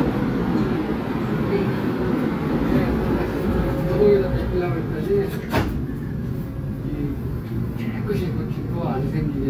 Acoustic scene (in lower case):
subway train